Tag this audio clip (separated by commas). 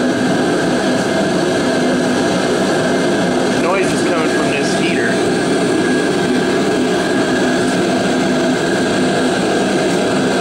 Engine, Speech